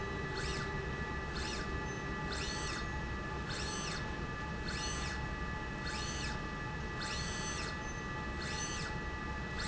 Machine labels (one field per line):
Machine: slide rail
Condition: normal